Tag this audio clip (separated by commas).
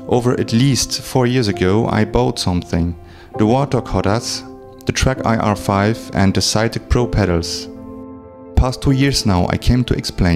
Music, Speech